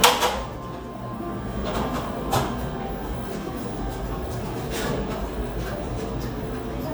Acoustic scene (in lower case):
cafe